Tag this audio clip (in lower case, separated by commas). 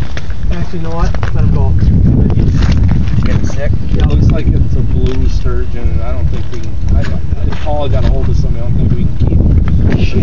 speech